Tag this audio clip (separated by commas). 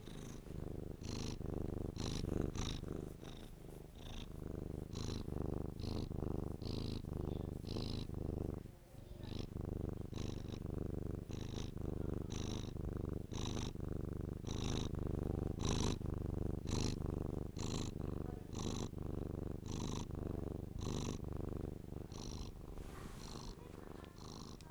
Cat, Animal, pets